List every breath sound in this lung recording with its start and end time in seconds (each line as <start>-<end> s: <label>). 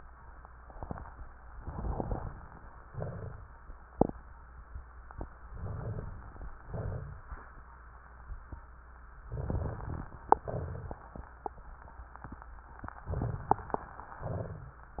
1.56-2.75 s: inhalation
1.56-2.75 s: crackles
2.88-3.64 s: exhalation
2.88-3.64 s: crackles
5.49-6.51 s: inhalation
6.62-7.65 s: exhalation
9.27-10.31 s: inhalation
9.27-10.31 s: crackles
10.32-11.40 s: exhalation
10.32-11.40 s: crackles
13.07-14.06 s: inhalation